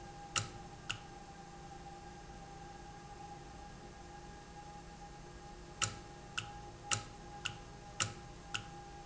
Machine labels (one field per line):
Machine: valve